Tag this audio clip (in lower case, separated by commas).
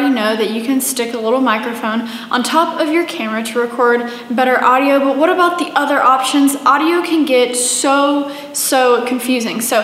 speech, female speech